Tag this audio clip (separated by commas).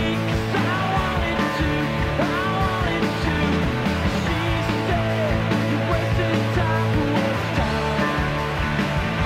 Dance music, Music